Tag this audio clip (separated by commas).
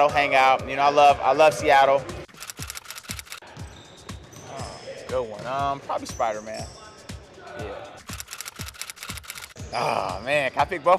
Music, Speech